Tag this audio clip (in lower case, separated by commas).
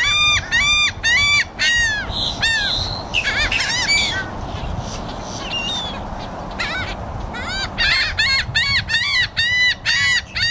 bird squawking